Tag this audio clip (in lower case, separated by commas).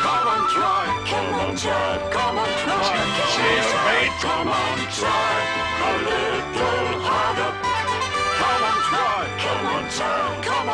music, speech